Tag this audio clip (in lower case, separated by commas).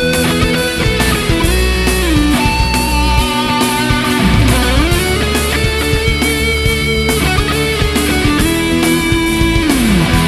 plucked string instrument, electric guitar, guitar, musical instrument, strum, music, playing electric guitar